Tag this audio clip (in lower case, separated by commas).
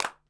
hands, clapping